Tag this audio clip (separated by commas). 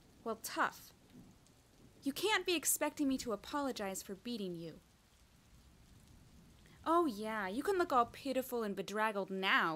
Speech